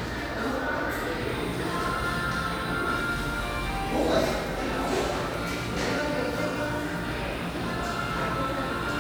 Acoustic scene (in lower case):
cafe